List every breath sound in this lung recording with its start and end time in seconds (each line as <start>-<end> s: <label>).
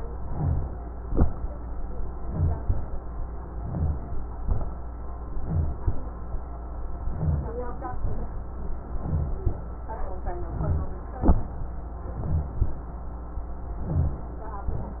0.10-0.67 s: inhalation
1.04-1.46 s: exhalation
2.20-2.62 s: inhalation
2.62-2.98 s: exhalation
3.47-4.08 s: inhalation
4.42-4.74 s: exhalation
5.31-5.83 s: inhalation
5.83-6.22 s: exhalation
7.08-7.55 s: inhalation
9.01-9.49 s: inhalation
10.55-11.03 s: inhalation
12.16-12.64 s: inhalation
13.83-14.31 s: inhalation